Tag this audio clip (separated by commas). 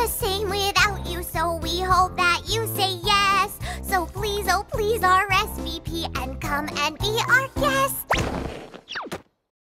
Child singing, Music